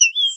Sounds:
Bird, Animal, bird song, Wild animals

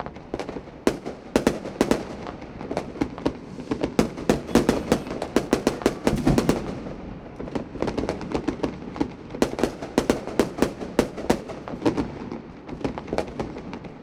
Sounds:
Explosion, Fire, Fireworks

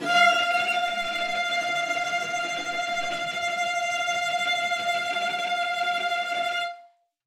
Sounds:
Music, Musical instrument, Bowed string instrument

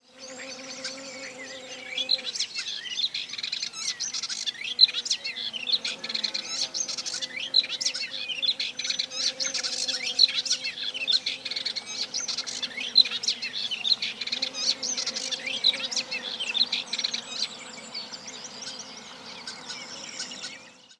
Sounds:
bird call, Bird, Animal, Wild animals

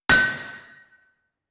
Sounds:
Hammer, Tools

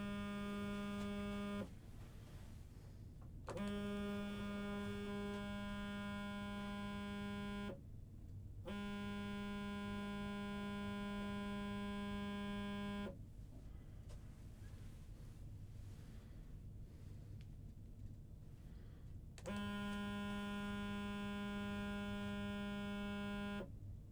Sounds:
Alarm, Telephone

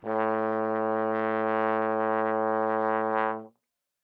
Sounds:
Brass instrument, Musical instrument, Music

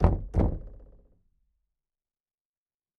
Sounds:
Knock, home sounds, Door

